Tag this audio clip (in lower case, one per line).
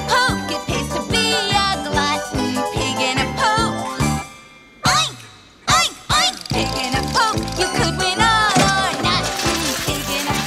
music